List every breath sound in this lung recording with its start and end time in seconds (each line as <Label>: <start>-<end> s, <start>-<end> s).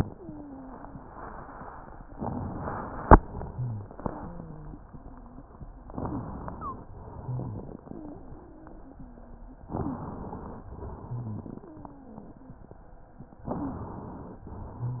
Inhalation: 2.15-3.13 s, 5.88-6.87 s, 9.70-10.65 s, 13.47-14.43 s
Exhalation: 3.17-5.80 s, 6.95-9.62 s, 10.76-13.43 s, 14.47-15.00 s
Wheeze: 0.06-1.15 s, 4.06-5.47 s, 6.50-6.80 s, 7.87-9.55 s, 9.72-10.07 s, 11.62-12.42 s, 13.57-13.85 s
Rhonchi: 3.53-3.91 s, 7.21-7.68 s, 11.06-11.62 s, 14.76-15.00 s